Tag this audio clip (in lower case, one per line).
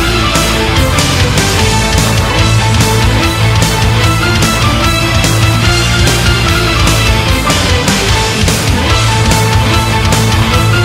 music